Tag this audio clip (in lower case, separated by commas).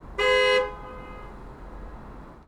vehicle, car, alarm, car horn, motor vehicle (road)